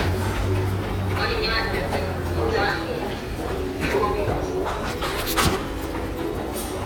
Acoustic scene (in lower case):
subway station